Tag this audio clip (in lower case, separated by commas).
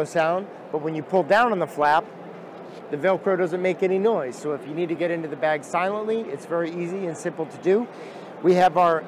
speech